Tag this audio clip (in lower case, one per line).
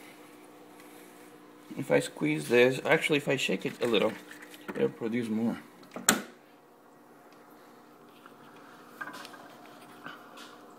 inside a small room
speech